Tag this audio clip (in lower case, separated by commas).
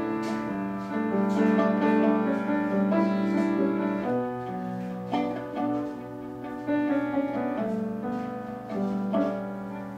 musical instrument, string section, pizzicato, bowed string instrument, music, fiddle